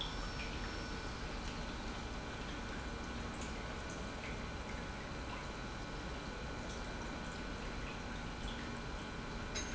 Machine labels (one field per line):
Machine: pump